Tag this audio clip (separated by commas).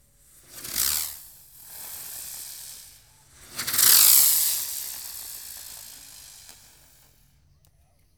Explosion, Fireworks